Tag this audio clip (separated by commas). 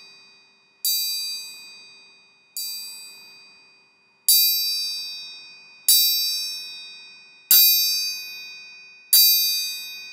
Percussion, Musical instrument, Music